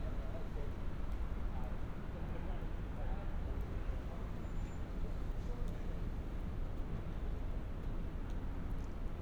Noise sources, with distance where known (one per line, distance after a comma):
person or small group talking